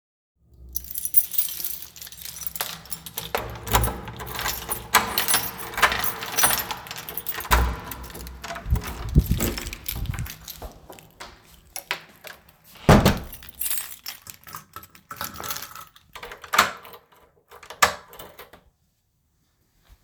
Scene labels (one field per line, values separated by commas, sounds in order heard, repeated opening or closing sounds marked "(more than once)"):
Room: hallway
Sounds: keys, door (more than once)